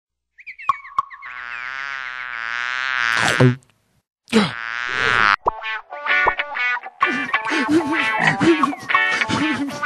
A fly buzzing and frog croaking